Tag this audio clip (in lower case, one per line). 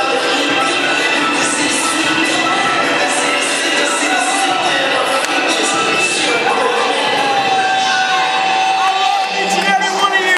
music
inside a large room or hall
speech